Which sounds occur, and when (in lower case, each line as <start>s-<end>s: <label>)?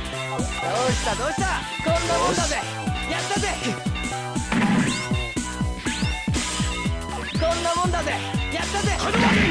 0.0s-9.5s: music
0.0s-9.5s: video game sound
0.5s-1.6s: male speech
1.8s-2.7s: male speech
3.1s-3.8s: male speech
4.5s-5.4s: sound effect
5.8s-6.9s: sound effect
7.2s-7.8s: sound effect
7.4s-8.4s: male speech
8.1s-8.6s: sound effect
8.6s-9.5s: male speech
9.1s-9.5s: sound effect